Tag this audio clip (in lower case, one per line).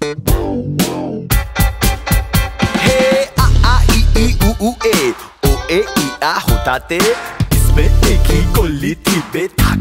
rapping